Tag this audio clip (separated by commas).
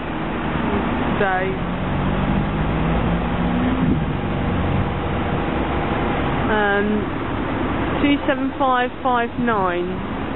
Vehicle, Speech, Bus